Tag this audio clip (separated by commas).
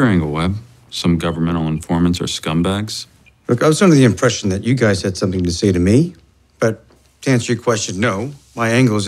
Speech